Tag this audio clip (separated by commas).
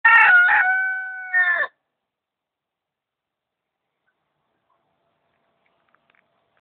cock-a-doodle-doo, Chicken, Fowl